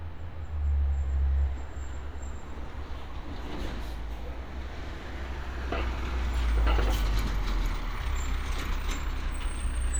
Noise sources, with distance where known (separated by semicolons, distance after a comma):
large-sounding engine